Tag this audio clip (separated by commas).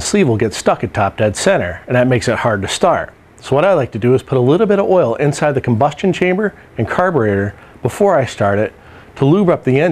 Speech